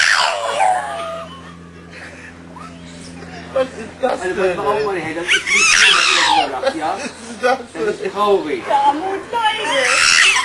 Animal noise and people talking